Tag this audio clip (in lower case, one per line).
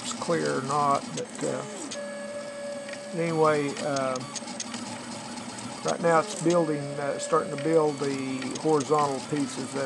speech
printer